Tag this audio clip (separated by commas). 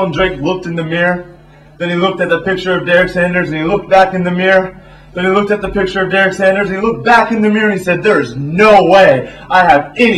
Speech, inside a small room